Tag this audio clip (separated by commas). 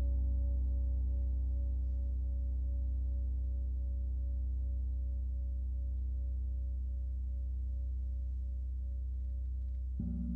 Gong